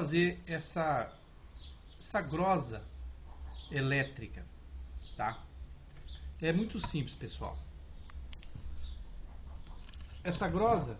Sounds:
speech

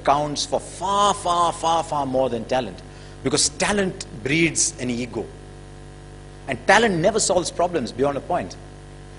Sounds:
speech
man speaking

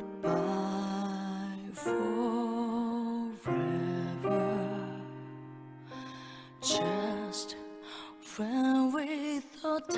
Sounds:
music

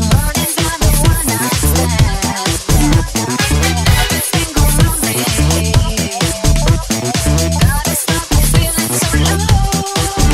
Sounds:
pop music
music
funk

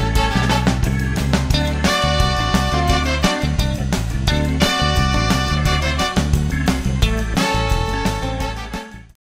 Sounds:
music

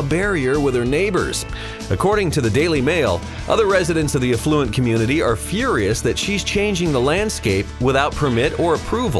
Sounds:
speech
music

